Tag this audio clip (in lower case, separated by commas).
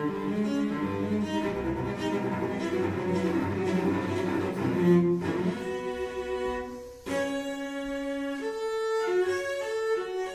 classical music, music, cello, bowed string instrument, musical instrument